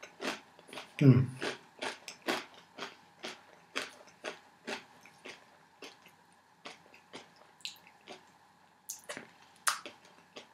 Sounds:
inside a small room

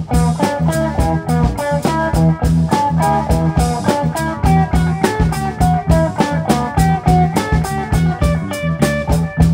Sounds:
Music, Blues

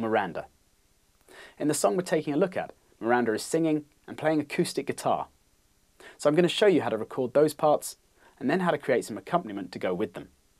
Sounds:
Speech

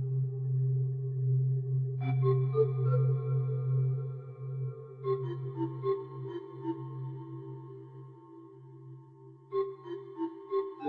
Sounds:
Music, Singing bowl

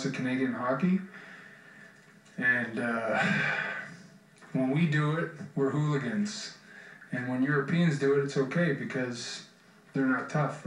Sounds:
monologue, man speaking, Speech

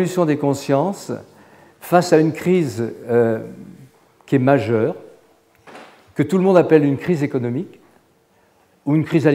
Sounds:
Speech

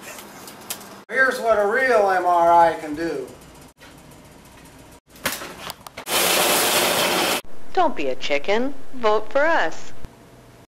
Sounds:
Speech

